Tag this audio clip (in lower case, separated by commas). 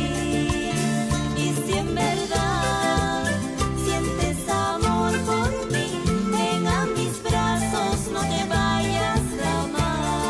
guitar, music, musical instrument, singing